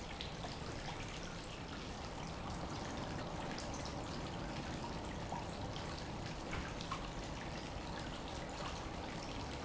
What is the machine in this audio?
pump